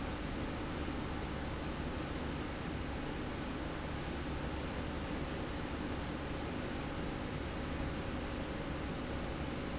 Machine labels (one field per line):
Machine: slide rail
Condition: normal